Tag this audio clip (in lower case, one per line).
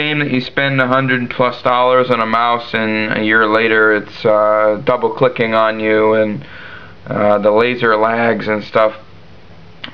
speech